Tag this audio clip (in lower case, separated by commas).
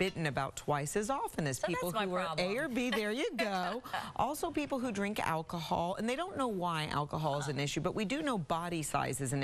speech